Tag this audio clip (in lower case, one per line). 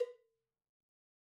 bell
cowbell